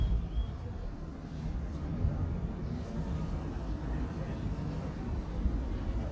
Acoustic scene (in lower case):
park